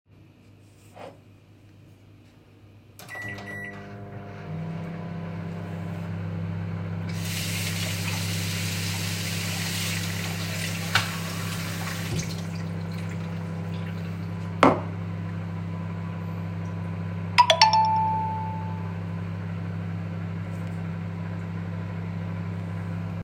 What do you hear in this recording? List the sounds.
microwave, running water, cutlery and dishes, phone ringing